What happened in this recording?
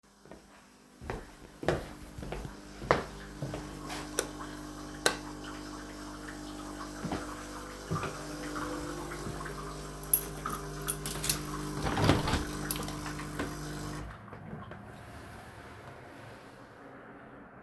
I went to the kitchen where coffee machine was already running, turned on the lights and opened a window.